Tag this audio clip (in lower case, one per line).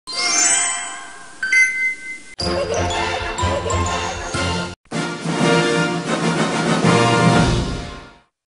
music